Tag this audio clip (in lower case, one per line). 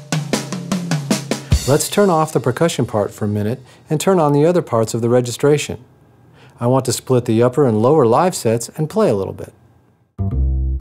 music
speech